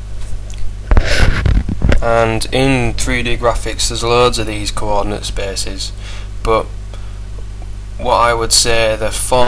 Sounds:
Speech

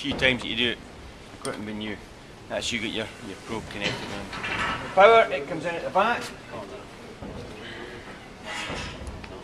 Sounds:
Speech

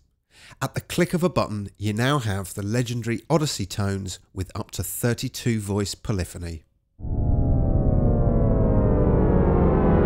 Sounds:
Synthesizer, Speech, Music

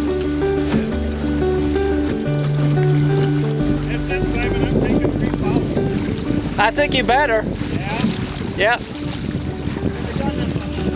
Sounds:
Vehicle, Speech, Music, Water vehicle

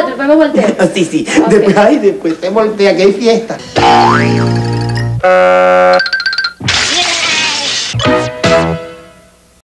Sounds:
Music, Speech

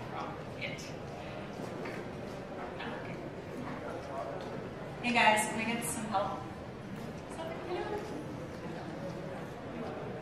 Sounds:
Speech

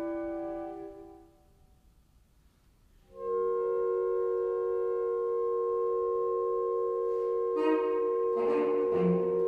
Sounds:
Musical instrument, Saxophone, Music

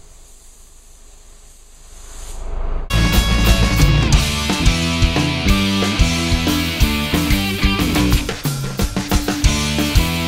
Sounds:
Music, inside a large room or hall

